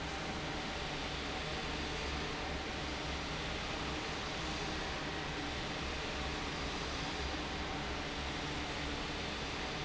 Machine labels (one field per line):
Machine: fan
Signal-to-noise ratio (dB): -6 dB